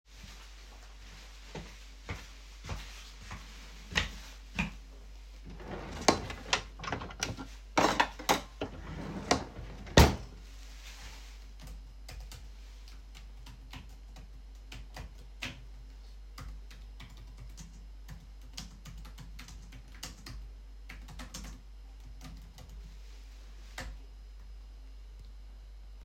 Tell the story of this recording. I carried the phone while walking to my desk. I opened a desk drawer to find a pen, closed it, and then typed a few sentences on my laptop keyboard.